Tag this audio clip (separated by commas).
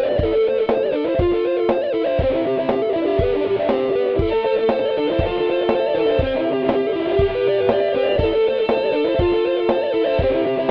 Music, fiddle, Musical instrument